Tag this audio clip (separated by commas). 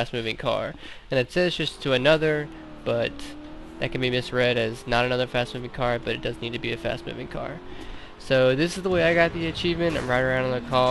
Vehicle, Car, Speech